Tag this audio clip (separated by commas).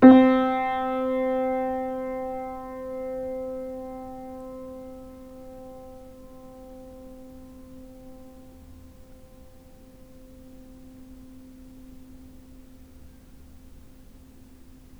Music, Keyboard (musical), Piano, Musical instrument